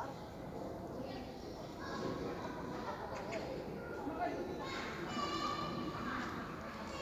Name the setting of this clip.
park